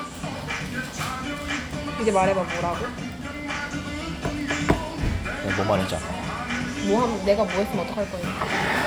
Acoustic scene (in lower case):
restaurant